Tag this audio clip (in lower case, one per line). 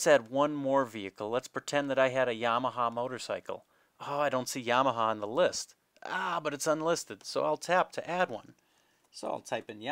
speech